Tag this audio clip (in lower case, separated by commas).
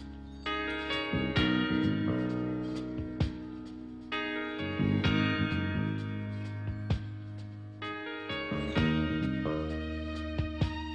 music